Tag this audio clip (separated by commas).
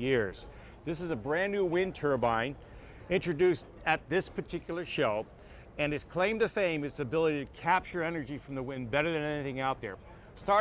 Speech